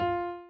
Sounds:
music, keyboard (musical), piano, musical instrument

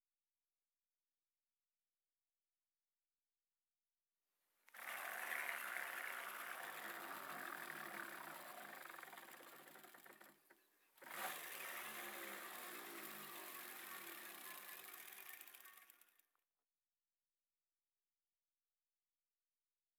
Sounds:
vehicle, bicycle

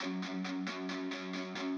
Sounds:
plucked string instrument, guitar, electric guitar, music, musical instrument

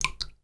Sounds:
liquid, drip

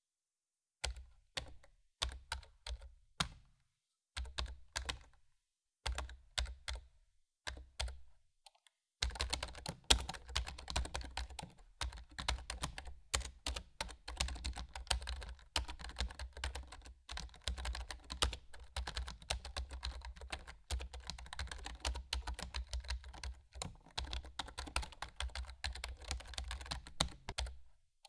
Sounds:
typing, home sounds, computer keyboard

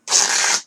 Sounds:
tearing

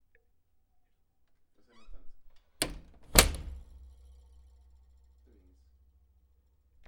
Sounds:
door, wood, slam, home sounds

